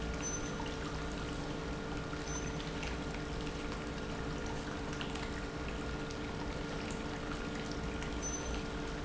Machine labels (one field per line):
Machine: pump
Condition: normal